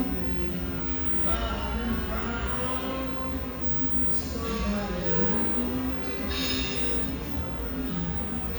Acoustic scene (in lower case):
restaurant